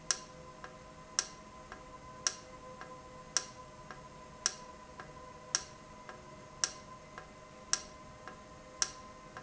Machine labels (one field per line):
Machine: valve